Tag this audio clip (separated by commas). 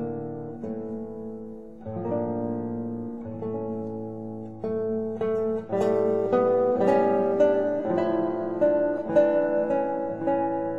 Music